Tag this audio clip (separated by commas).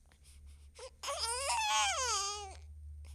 Crying, Human voice